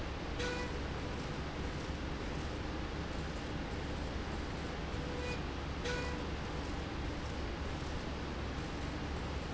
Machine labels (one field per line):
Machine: slide rail